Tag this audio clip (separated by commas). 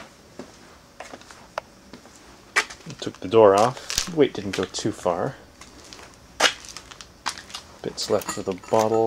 Speech